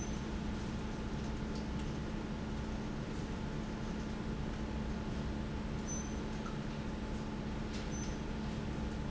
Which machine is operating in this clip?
fan